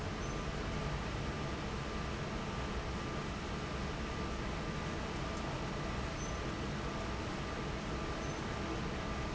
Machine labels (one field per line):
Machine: fan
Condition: normal